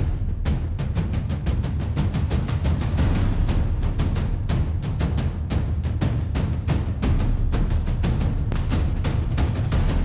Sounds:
music

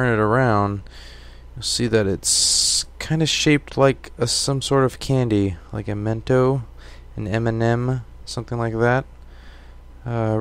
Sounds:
speech

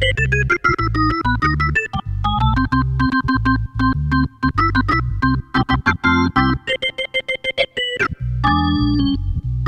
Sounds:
organ, playing hammond organ, hammond organ

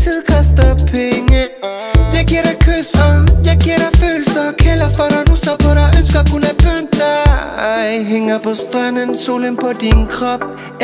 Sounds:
dance music, music

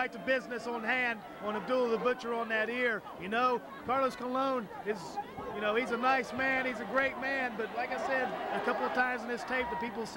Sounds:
man speaking

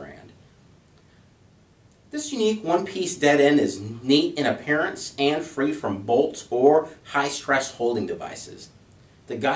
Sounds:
speech

